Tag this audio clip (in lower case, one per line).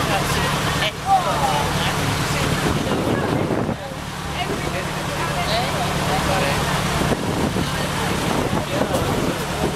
car
vehicle
speech